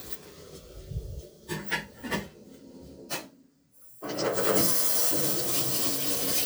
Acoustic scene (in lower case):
kitchen